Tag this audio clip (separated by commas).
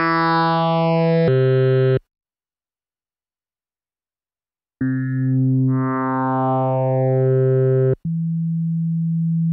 playing synthesizer